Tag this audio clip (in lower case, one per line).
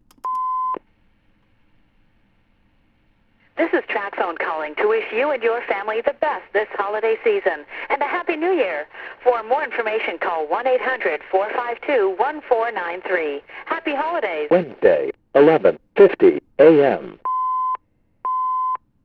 alarm
telephone